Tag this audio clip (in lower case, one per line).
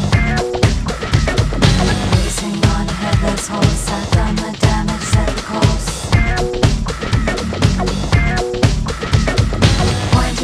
music